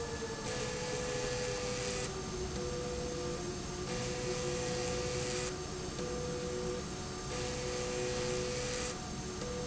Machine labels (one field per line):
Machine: slide rail